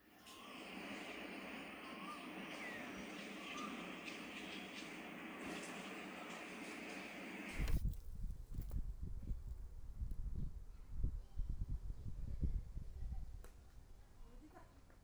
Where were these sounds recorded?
in a park